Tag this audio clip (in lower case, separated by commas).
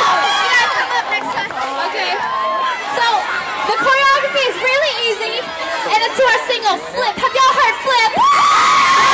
speech